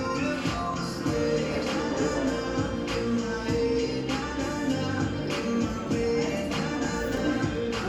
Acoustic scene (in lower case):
cafe